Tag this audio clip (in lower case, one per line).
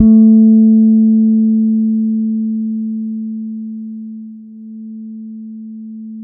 guitar
musical instrument
music
plucked string instrument
bass guitar